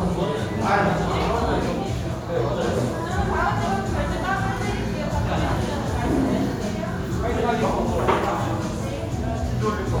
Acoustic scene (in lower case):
restaurant